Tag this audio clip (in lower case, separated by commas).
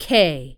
human voice, female speech, speech